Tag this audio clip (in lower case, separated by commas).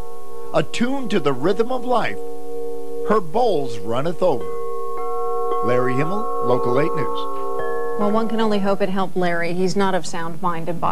singing bowl